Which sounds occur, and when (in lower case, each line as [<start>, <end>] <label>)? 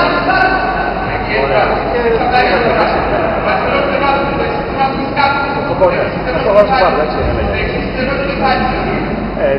[0.00, 0.90] male speech
[0.00, 9.55] mechanisms
[1.10, 2.91] male speech
[3.43, 7.03] male speech
[7.45, 8.81] male speech